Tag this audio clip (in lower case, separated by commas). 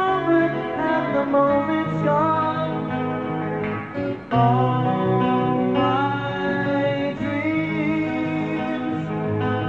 music